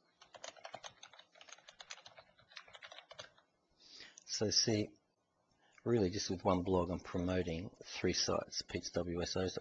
Typing on a computer keyboard followed by a man talking